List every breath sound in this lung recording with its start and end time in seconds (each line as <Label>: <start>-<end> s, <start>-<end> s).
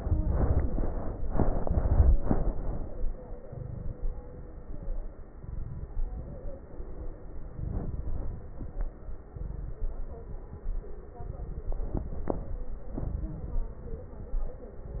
Inhalation: 3.38-4.33 s, 5.34-6.29 s, 7.60-8.55 s, 9.31-10.26 s, 11.19-12.14 s, 12.96-13.68 s
Crackles: 3.38-4.33 s, 5.34-6.29 s, 7.60-8.55 s, 9.31-10.26 s, 11.19-12.14 s, 12.96-13.68 s